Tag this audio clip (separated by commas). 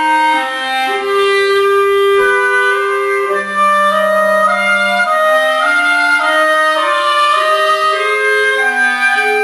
Clarinet, Wind instrument, Music